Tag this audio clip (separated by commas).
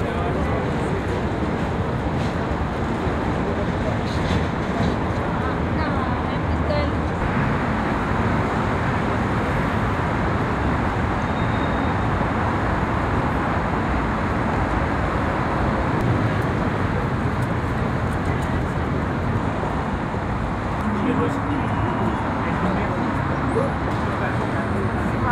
Motor vehicle (road), roadway noise, Vehicle